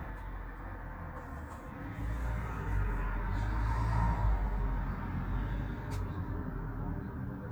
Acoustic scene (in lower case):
street